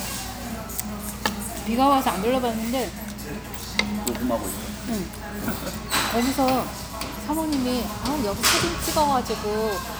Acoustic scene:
restaurant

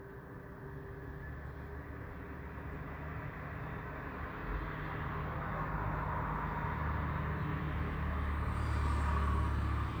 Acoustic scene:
street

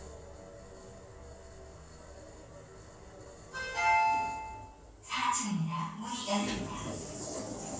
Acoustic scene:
elevator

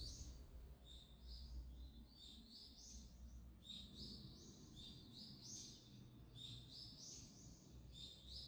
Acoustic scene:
park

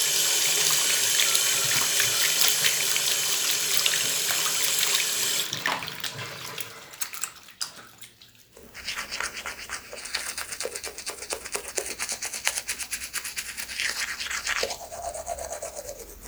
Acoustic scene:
restroom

